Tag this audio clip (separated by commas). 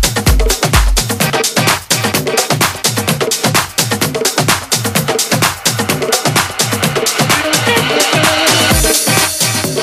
Electronic music, Music, Dance music